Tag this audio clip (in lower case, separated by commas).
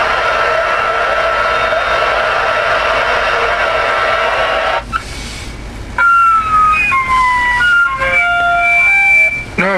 speech, radio